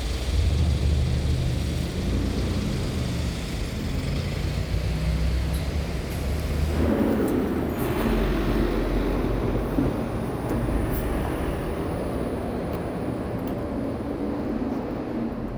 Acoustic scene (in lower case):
street